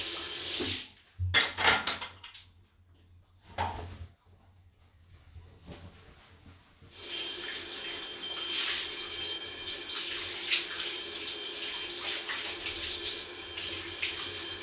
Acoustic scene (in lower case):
restroom